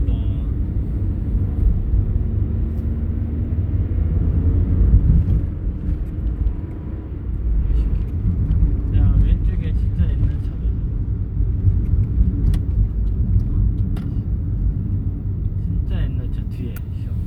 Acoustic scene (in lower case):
car